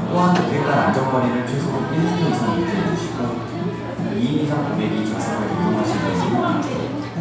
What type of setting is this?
crowded indoor space